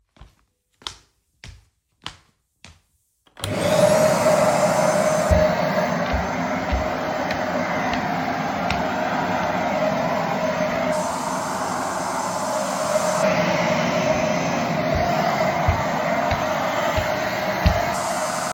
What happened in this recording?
I walked across the room and turned on a vacuum cleaner. Then the vacuum cleaner sound and footsteps were recorded together.